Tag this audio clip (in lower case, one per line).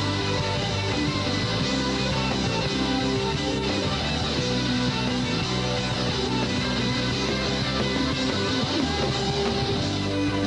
music